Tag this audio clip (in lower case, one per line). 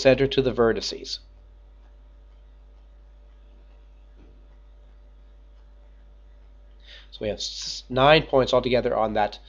speech